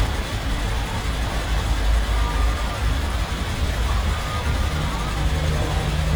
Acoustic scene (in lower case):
street